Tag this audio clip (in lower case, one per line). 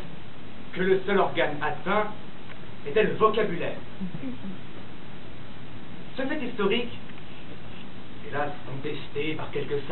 speech